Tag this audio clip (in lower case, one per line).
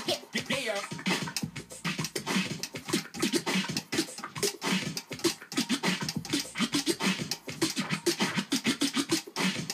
music
scratching (performance technique)